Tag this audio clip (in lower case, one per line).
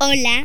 human voice